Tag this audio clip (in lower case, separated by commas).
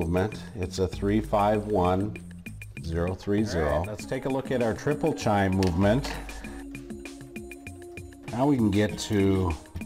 music, speech